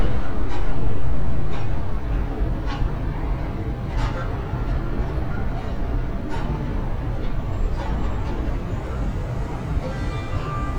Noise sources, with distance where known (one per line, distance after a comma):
car horn